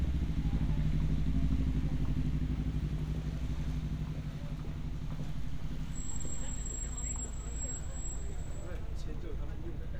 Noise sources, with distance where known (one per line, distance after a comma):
medium-sounding engine, near
person or small group talking, near